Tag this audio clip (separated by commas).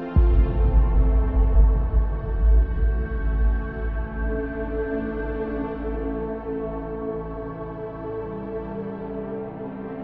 Music, Tender music